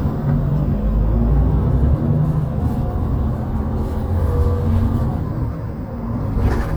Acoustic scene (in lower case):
bus